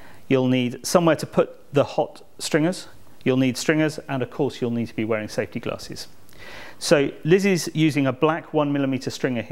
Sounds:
speech

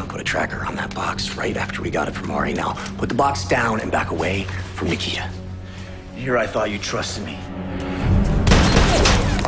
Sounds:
music, inside a small room, speech

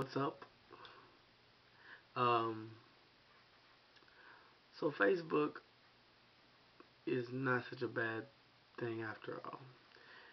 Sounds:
speech

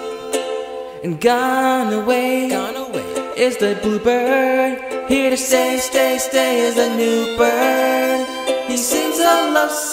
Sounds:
music, musical instrument, violin, pizzicato

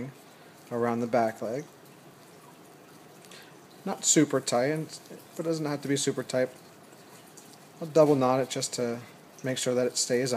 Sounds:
speech

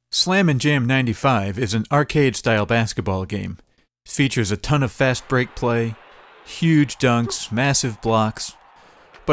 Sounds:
speech

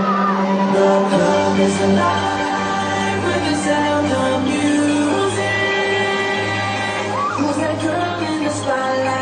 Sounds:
music

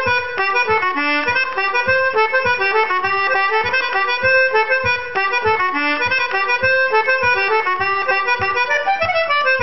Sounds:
musical instrument, music

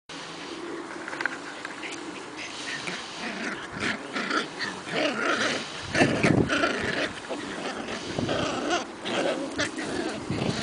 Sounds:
dog, pets, animal

